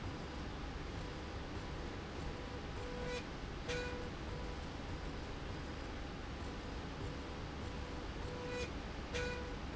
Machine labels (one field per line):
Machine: slide rail